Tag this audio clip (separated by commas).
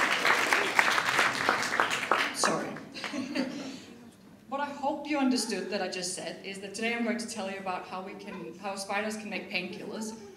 Speech